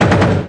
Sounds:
gunshot, explosion

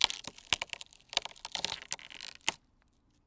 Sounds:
wood

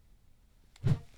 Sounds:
whoosh

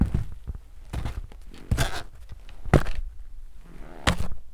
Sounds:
footsteps

